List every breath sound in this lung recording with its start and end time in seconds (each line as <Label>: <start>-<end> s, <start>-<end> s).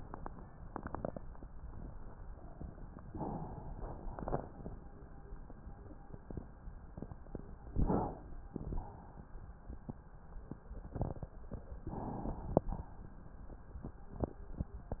Inhalation: 3.06-4.10 s, 7.70-8.55 s, 11.92-12.70 s
Exhalation: 4.10-4.76 s, 8.58-9.29 s, 12.70-13.00 s